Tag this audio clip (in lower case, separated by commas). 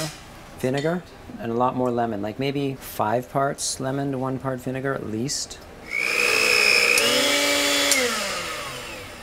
blender